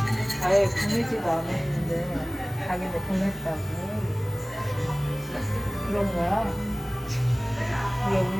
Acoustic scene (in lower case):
cafe